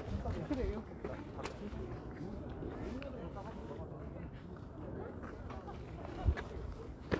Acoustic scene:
park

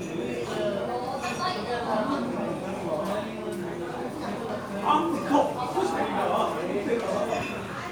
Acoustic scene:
crowded indoor space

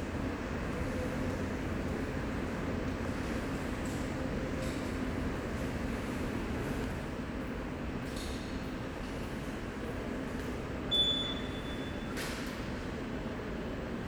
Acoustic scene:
subway station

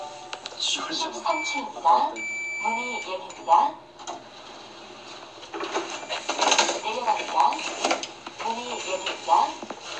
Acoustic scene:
elevator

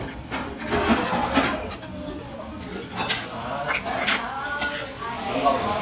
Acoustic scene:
crowded indoor space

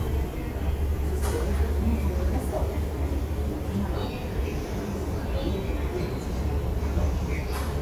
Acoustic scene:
subway station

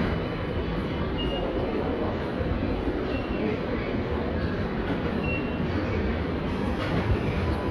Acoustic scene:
subway station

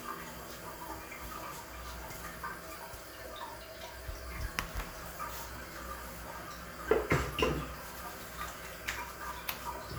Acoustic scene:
restroom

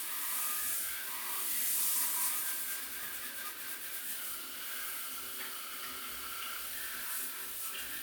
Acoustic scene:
restroom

